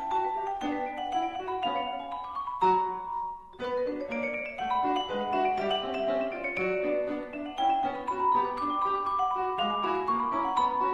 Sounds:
music

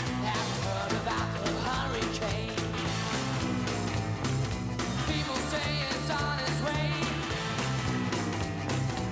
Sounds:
music

